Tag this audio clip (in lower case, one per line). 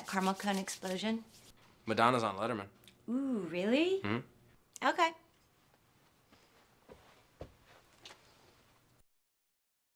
speech